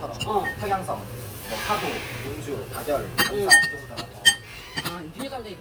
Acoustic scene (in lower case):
restaurant